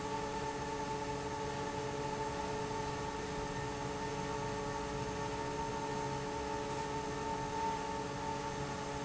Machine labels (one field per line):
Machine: fan